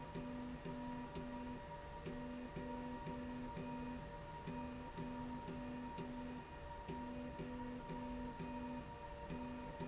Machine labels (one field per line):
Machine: slide rail